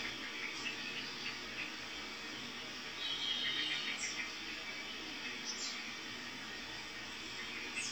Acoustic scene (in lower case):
park